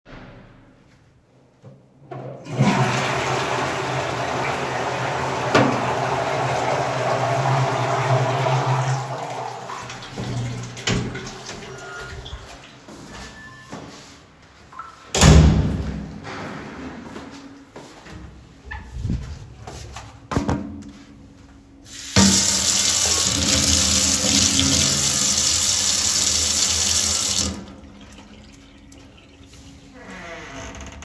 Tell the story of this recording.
I flused the toilet, unlocked the door then exited the toilet, went to the sink turned on the tap and washed my hands